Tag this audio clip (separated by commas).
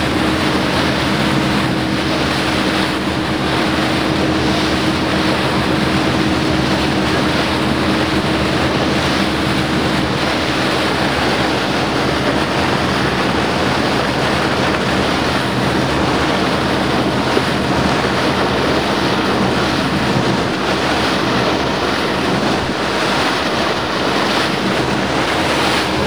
Water vehicle, Vehicle